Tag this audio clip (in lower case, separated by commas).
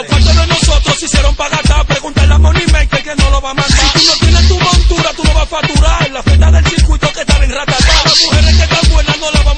music